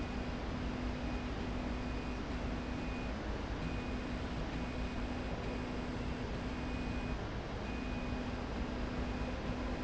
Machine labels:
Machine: slide rail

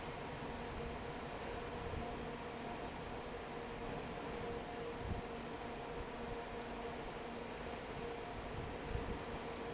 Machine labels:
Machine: fan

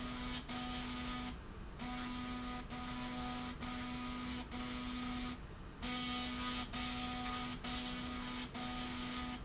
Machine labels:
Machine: slide rail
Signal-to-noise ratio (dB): 6 dB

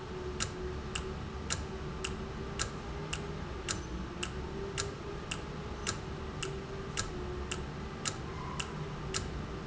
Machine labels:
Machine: valve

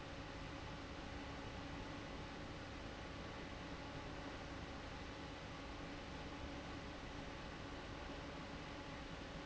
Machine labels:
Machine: fan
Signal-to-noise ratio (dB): 6 dB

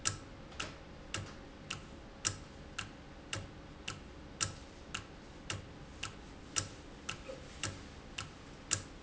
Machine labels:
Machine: valve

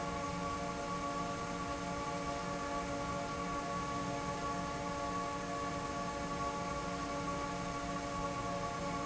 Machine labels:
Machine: fan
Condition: normal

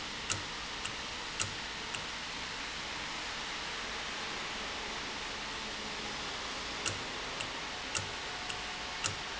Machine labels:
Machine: valve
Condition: normal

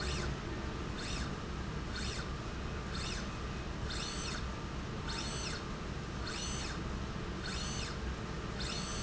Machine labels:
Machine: slide rail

